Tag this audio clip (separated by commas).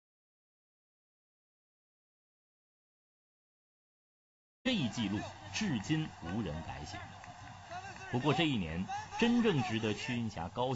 outside, urban or man-made, Speech, Run